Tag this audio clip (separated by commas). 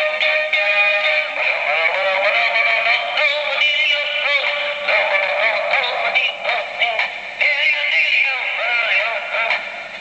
Radio